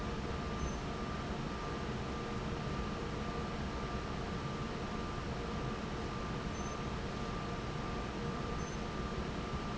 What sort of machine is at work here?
fan